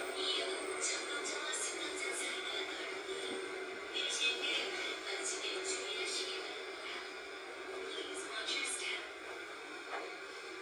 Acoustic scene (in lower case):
subway train